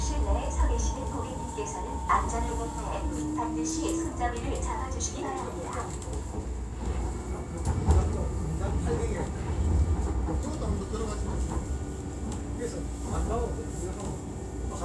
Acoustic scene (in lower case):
subway train